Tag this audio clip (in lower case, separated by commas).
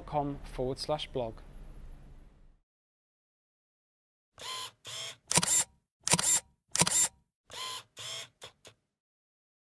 camera, speech, single-lens reflex camera